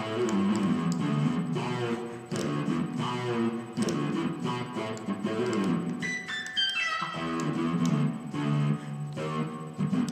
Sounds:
Music

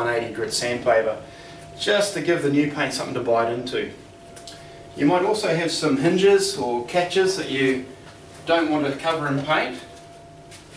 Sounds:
Speech

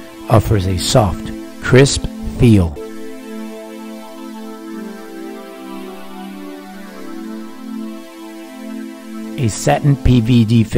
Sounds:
Speech, Music

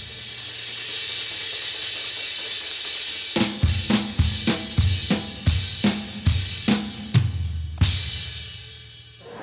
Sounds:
Hi-hat

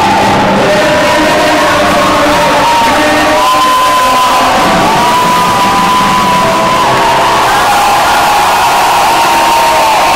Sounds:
inside a large room or hall

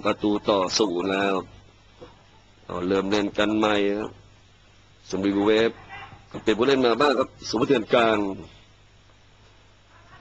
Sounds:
Speech

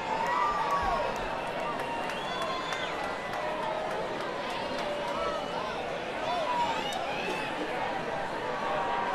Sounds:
Speech

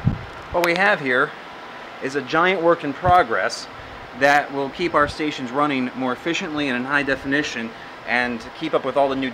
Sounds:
Speech, Air conditioning

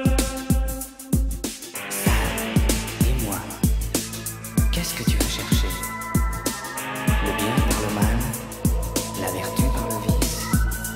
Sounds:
Music

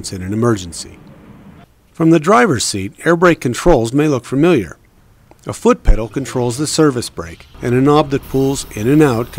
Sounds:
Speech

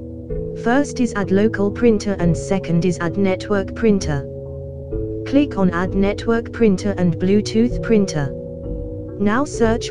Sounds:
Speech, Music

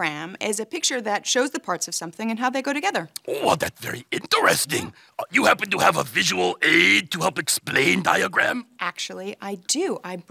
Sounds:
Speech, inside a small room

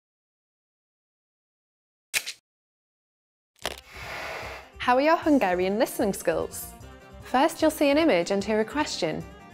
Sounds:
Speech, Music

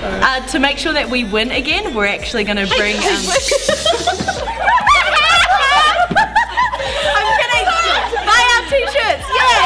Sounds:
Speech, Snicker, Music, people sniggering

